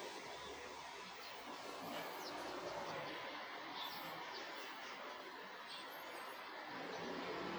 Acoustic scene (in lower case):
park